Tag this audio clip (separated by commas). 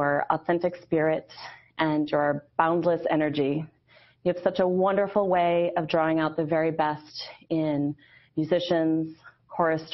Speech